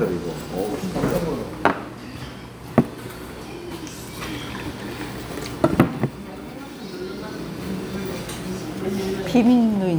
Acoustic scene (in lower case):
restaurant